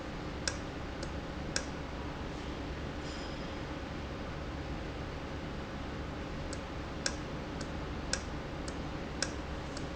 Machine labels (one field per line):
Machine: valve